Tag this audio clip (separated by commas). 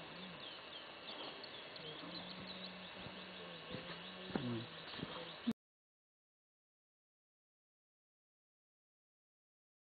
tweet, Bird, Bird vocalization